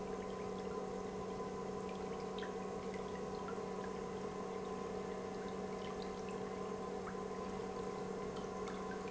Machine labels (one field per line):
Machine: pump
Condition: normal